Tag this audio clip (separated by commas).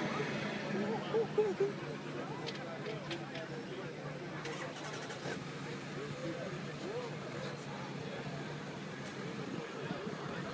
Vehicle, Car, Speech